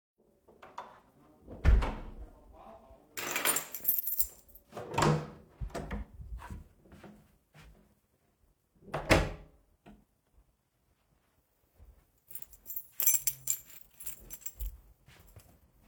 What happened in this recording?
I closed the bedroom door snatched the key of the counter, opene and closed the front door and after fidgeted my keys